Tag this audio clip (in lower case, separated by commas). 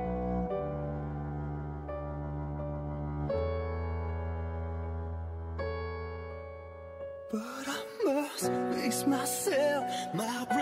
static, music